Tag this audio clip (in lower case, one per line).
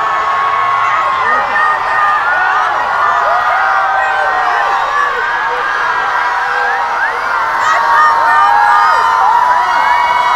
people cheering